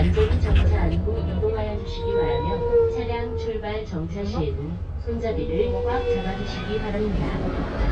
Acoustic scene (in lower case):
bus